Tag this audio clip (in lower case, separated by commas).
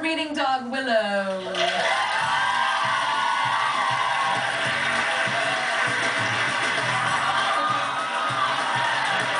music, speech